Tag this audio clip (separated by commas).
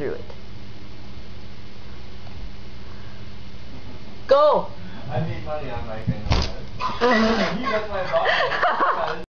Speech